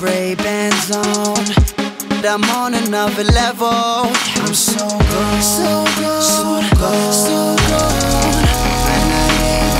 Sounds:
pop music
music

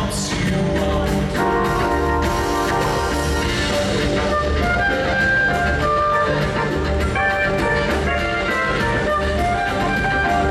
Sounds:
music

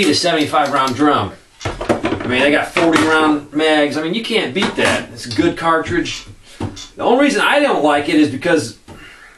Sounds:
speech

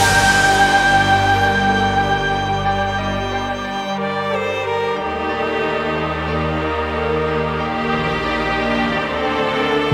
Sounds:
theme music

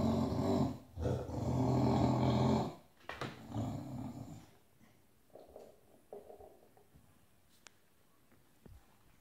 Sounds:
dog growling

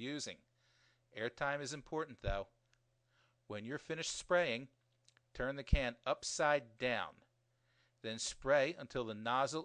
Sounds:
speech

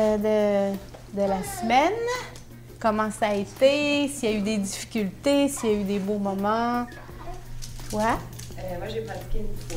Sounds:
music
speech

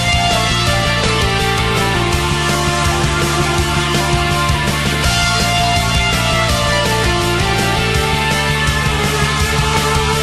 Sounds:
music

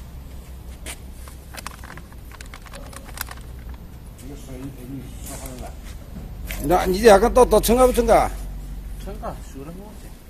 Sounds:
speech

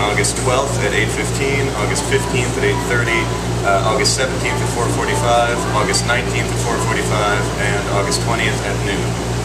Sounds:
vehicle
motorboat
speech

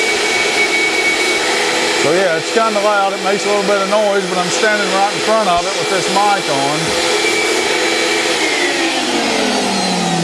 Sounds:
tools
speech

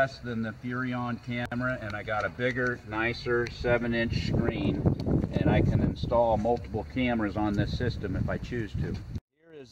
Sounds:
speech

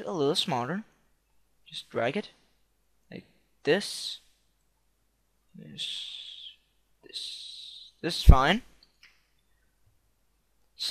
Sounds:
speech

